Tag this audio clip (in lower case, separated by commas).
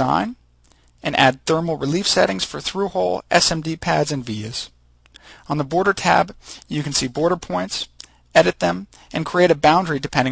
speech